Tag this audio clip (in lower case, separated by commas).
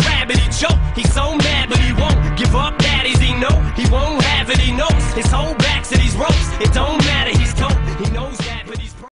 music